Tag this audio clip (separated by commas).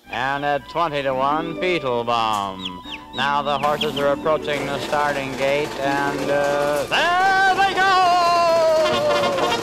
Music, Speech